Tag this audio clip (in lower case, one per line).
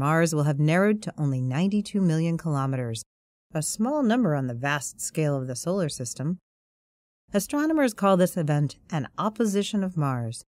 narration